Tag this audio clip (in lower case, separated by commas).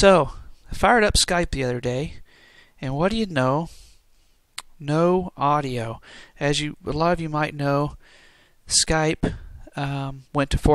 speech